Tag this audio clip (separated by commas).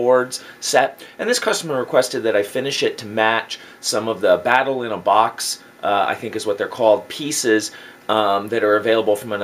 Speech